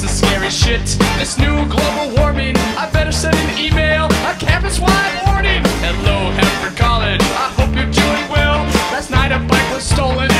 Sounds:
Music

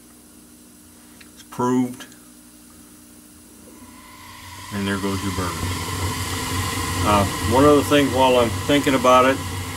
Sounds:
inside a small room, Speech

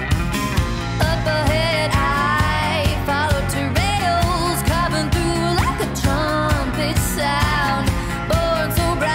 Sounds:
Music

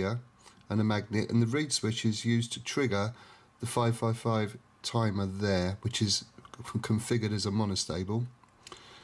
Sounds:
Speech

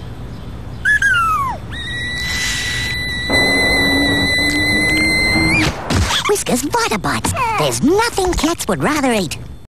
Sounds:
Speech

